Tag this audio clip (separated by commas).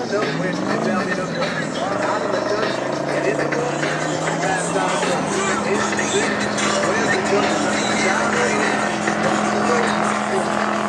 Vehicle, Water vehicle, Motorboat, Speech, Music